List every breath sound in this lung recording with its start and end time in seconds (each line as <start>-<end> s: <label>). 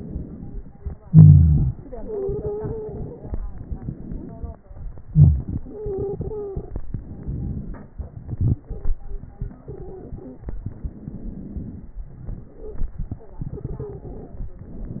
0.00-1.07 s: inhalation
1.06-1.85 s: wheeze
1.06-3.33 s: exhalation
1.97-3.06 s: stridor
3.39-5.12 s: inhalation
5.08-6.88 s: exhalation
5.67-6.62 s: stridor
6.84-8.69 s: inhalation
6.86-8.69 s: crackles
8.71-10.61 s: exhalation
9.63-10.61 s: stridor
10.60-12.01 s: inhalation
10.60-12.01 s: crackles
12.02-14.62 s: exhalation
12.60-12.82 s: stridor
13.60-14.24 s: stridor